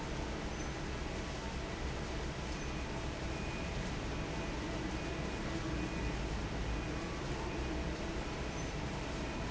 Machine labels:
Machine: fan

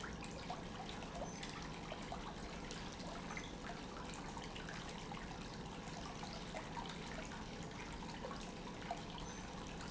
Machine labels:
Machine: pump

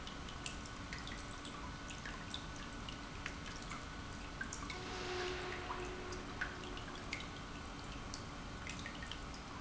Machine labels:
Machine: pump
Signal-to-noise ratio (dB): 6 dB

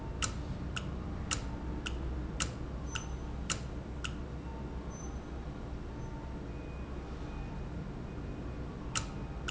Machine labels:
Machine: valve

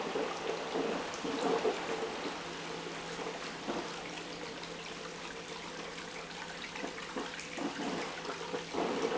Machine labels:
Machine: pump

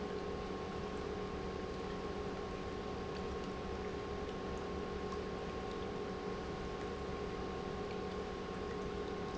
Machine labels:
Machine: pump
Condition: normal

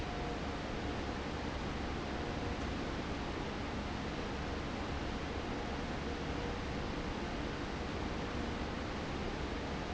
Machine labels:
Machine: fan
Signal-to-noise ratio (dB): -6 dB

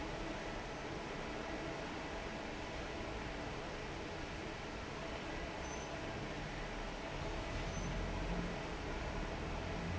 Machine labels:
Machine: fan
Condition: normal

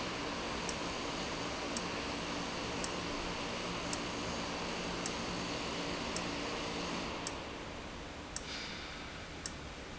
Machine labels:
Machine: valve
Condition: abnormal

